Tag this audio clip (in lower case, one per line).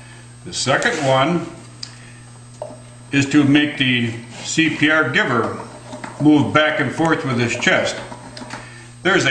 speech